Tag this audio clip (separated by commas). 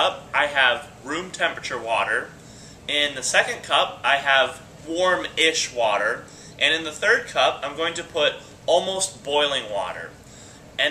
Speech